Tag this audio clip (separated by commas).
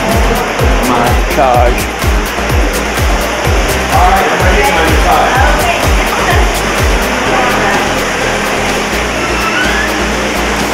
Music, Speech, Pop music